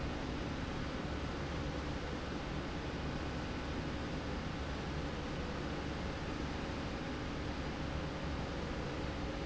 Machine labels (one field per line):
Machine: slide rail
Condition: normal